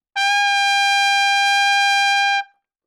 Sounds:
Musical instrument, Music, Brass instrument, Trumpet

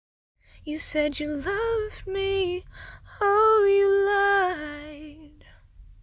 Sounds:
Singing, Female singing, Human voice

